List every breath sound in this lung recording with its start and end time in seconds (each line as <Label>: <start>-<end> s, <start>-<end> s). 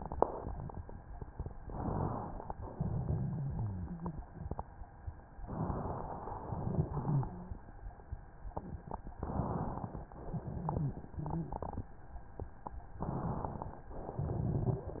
Inhalation: 1.58-2.55 s, 5.43-6.41 s, 9.19-10.15 s, 12.99-13.94 s
Exhalation: 2.55-4.61 s, 6.41-7.76 s, 10.15-11.93 s
Wheeze: 3.37-4.20 s, 6.76-7.54 s, 10.30-10.92 s, 11.16-11.53 s
Crackles: 12.99-13.94 s